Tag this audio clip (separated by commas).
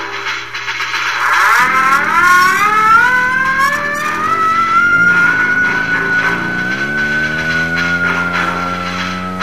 outside, rural or natural, Fixed-wing aircraft, Music, Vehicle